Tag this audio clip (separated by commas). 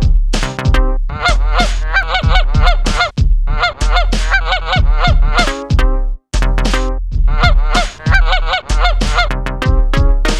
Honk, Fowl, Goose